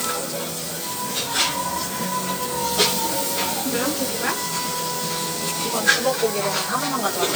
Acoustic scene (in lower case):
restaurant